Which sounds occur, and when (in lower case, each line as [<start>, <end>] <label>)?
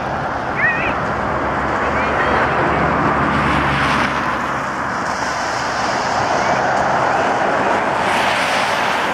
[0.00, 9.13] rain on surface
[0.00, 9.13] roadway noise
[0.55, 0.88] human voice
[1.82, 2.52] human voice
[3.14, 4.34] car passing by
[4.96, 6.55] car passing by
[6.32, 6.59] human voice
[8.00, 9.13] car passing by